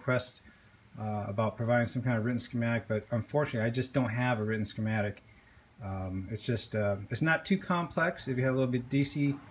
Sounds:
Speech

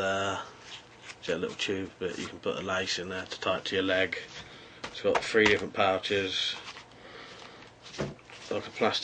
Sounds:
Speech

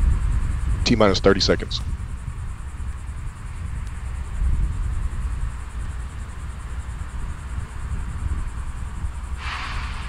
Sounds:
Speech

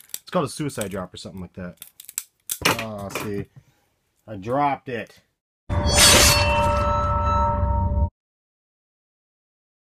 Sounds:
Speech, Music

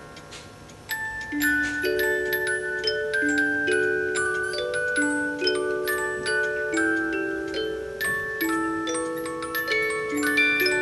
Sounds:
Tick, Tick-tock

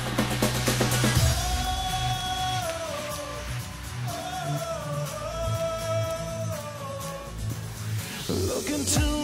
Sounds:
Music

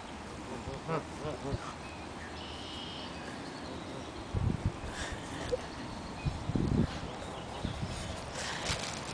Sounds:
Goose, Honk, Fowl

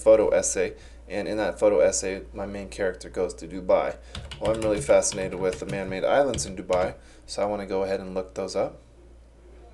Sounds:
Speech

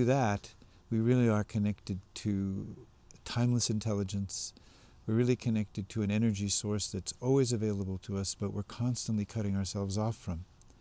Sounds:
Speech

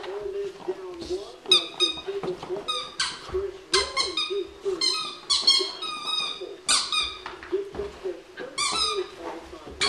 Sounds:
Dog, Domestic animals, Speech, Animal

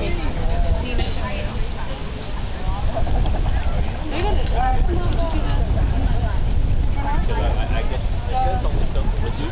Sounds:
Speech

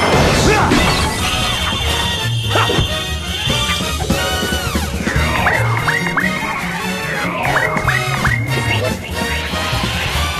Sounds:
Music

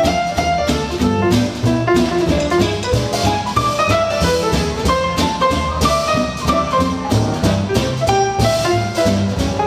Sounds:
Music, Musical instrument, Classical music

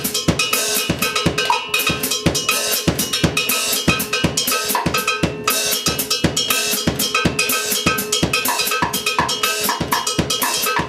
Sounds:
Drum, Music, Bass drum

